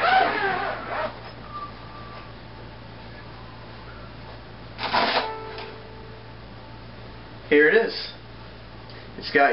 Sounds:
Musical instrument, Violin, Speech, Music

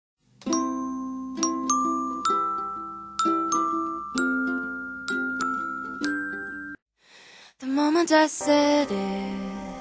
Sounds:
Glockenspiel, Lullaby

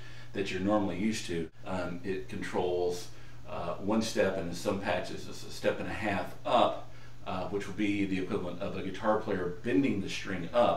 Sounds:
Speech

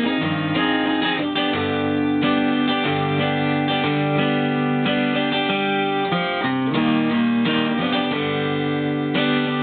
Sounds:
Acoustic guitar, Music, Strum, Plucked string instrument, Musical instrument, Guitar

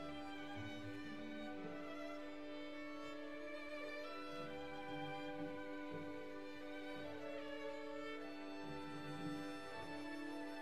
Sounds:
Musical instrument, Music

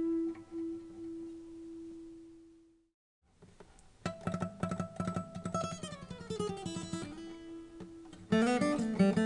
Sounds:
Acoustic guitar, Guitar, Music, Musical instrument, Plucked string instrument

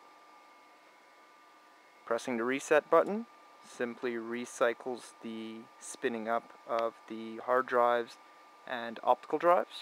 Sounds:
Speech

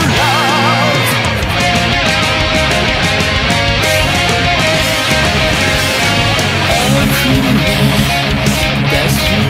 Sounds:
Music, Electric guitar, Guitar, Plucked string instrument, Musical instrument

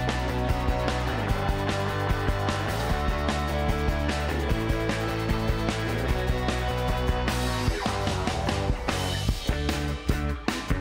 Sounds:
Music

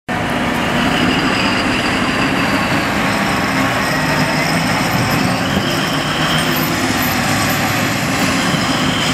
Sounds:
Vehicle, Truck

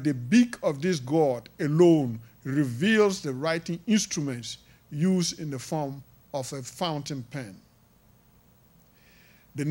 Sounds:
Speech

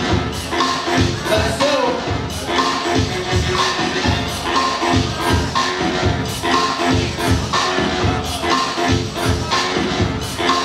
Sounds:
Music, Speech

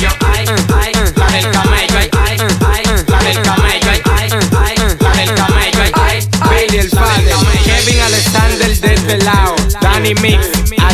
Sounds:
Rapping, Music, Hip hop music

